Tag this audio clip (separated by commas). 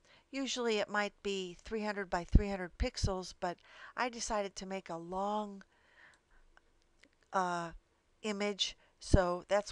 Speech